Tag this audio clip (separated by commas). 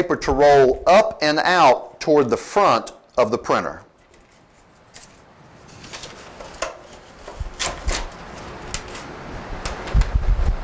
Speech